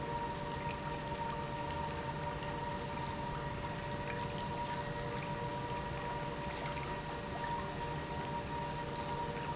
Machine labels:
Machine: pump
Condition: normal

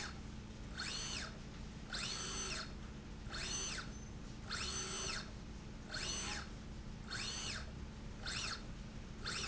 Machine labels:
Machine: slide rail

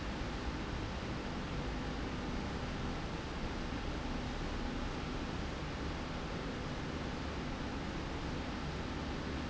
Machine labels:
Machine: slide rail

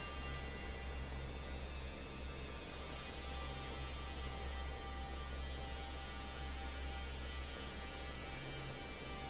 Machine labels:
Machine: fan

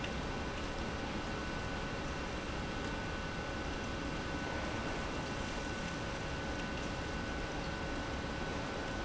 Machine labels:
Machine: pump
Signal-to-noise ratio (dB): -6 dB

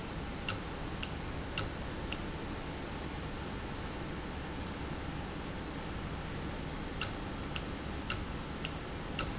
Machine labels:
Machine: valve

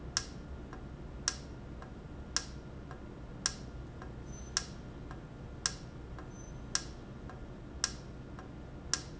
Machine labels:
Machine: valve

